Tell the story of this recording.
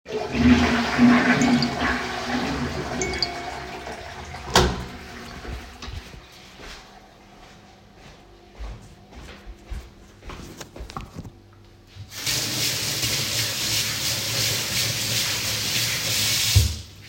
I got the notification twice while flushing the toilet, after I took the phone, went to the sink and washed my hands